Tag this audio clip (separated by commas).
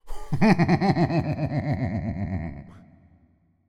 Laughter, Human voice